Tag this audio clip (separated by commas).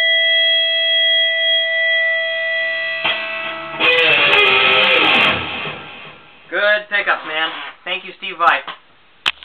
Music, Speech, Guitar, Plucked string instrument, Strum, Musical instrument, Bass guitar